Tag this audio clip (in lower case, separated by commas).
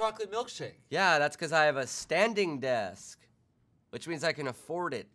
speech